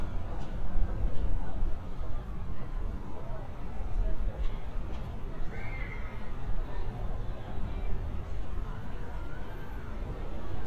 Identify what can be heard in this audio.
unidentified human voice